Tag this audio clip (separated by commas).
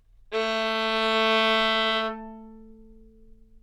Musical instrument, Music, Bowed string instrument